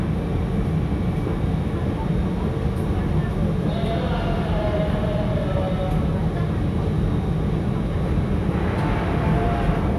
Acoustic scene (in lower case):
subway train